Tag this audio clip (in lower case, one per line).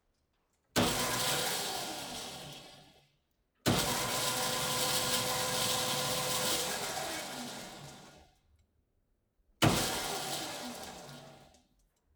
sawing
tools